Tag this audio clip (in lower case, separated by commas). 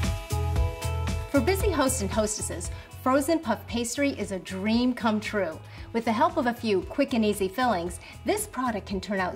speech, music